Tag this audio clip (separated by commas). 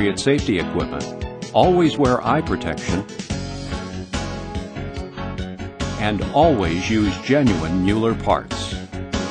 Music, Speech